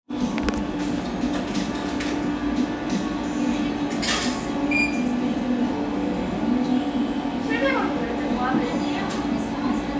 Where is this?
in a cafe